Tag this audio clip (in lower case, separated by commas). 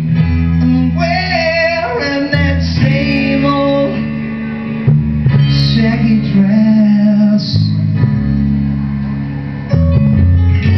male singing, music